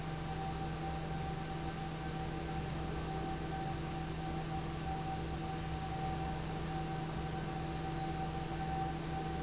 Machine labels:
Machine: fan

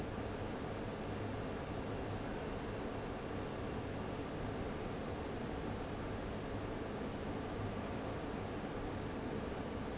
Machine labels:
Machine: fan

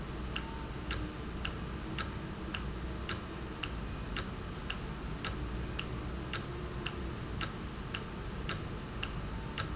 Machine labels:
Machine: valve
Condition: normal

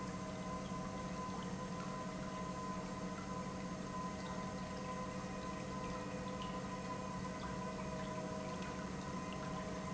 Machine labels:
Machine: pump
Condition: normal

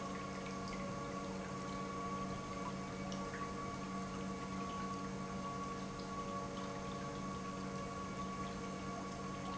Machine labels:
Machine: pump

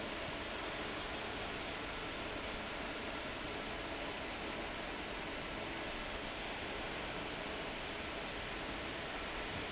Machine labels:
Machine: fan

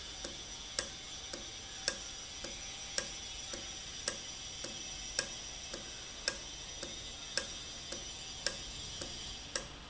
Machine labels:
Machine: valve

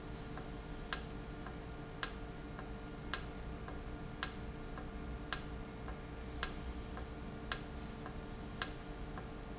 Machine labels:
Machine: valve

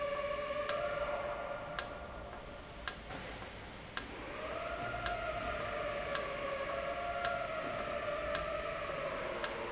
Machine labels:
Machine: valve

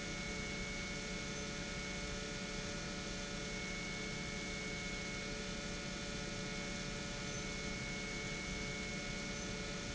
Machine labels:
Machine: pump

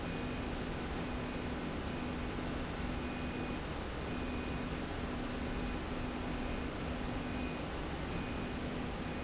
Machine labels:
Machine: slide rail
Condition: normal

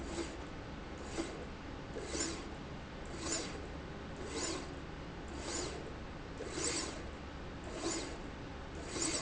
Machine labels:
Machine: slide rail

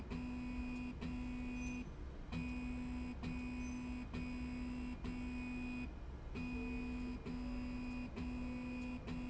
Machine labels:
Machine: slide rail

